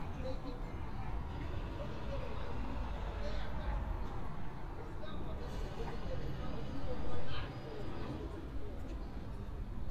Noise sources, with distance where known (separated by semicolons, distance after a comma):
unidentified impact machinery, far; person or small group talking